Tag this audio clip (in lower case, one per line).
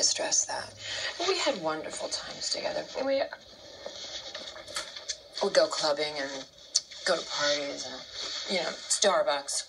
speech